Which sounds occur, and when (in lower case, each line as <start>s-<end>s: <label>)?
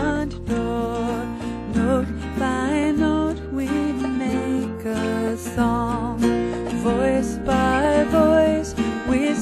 0.0s-0.3s: female singing
0.0s-9.4s: music
0.4s-1.3s: female singing
1.4s-1.6s: breathing
1.7s-2.0s: female singing
2.2s-3.3s: female singing
3.5s-6.1s: female singing
6.4s-6.6s: breathing
6.8s-8.6s: female singing
8.7s-9.0s: breathing